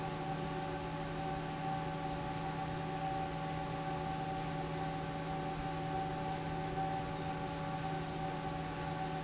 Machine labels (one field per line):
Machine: fan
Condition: normal